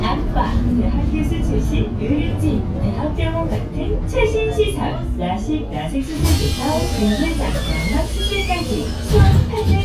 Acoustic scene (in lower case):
bus